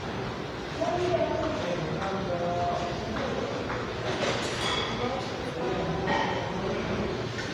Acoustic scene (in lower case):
restaurant